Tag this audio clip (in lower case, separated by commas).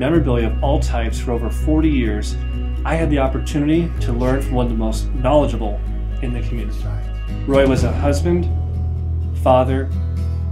speech, music